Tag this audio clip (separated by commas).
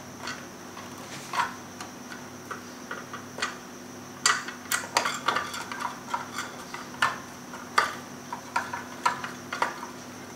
inside a small room